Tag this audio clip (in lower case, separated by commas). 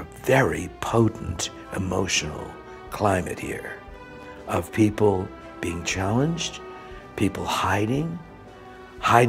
music, speech